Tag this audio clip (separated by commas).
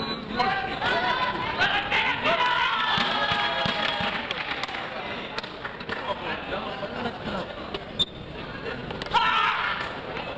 inside a large room or hall, Speech